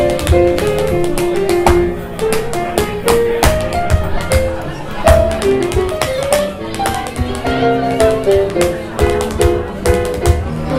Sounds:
tap dancing

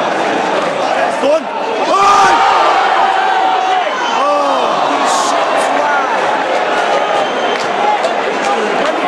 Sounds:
crowd, speech

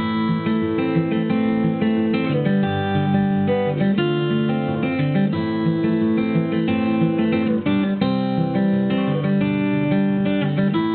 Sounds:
music

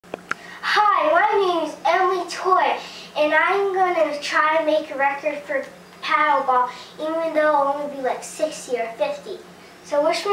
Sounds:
inside a small room, speech, child speech

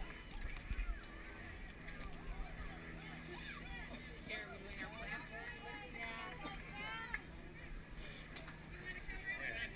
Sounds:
speech

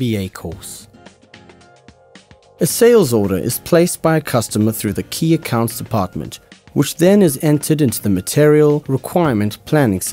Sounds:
speech, music

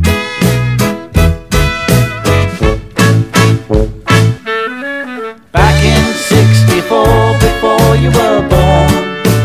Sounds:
music, saxophone

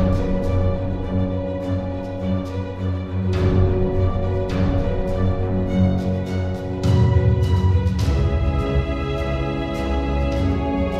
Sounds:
music

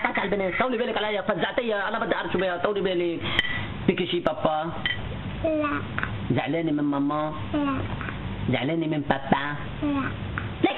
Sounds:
speech

